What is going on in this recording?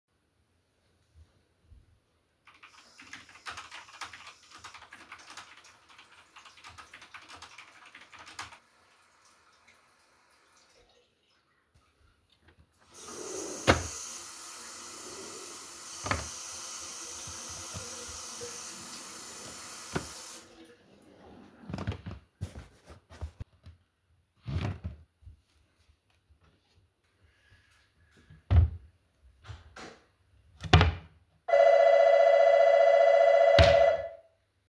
I was typing on my keyboard, then i turned on the water faucet, looked for something in the drawer next to it and after that someone rang the doorbell.